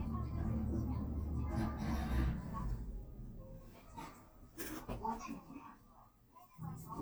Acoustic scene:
elevator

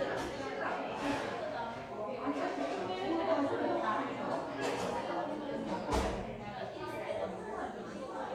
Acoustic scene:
cafe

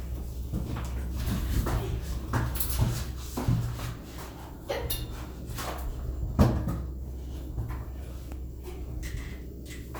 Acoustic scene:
elevator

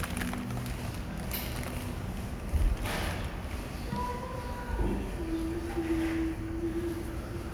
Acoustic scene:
restaurant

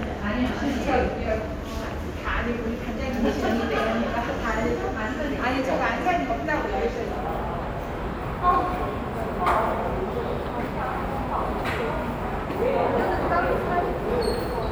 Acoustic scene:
subway station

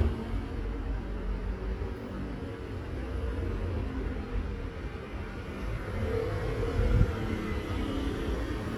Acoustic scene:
street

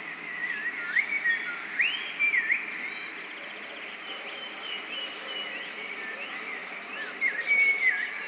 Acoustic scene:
park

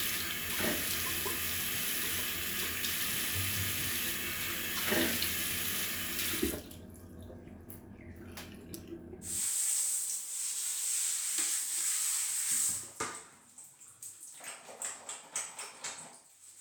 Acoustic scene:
restroom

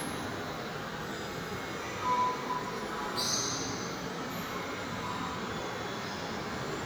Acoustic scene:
subway station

